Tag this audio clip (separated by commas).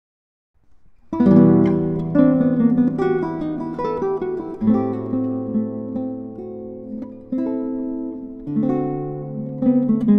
Musical instrument, Guitar, Plucked string instrument, Music, Acoustic guitar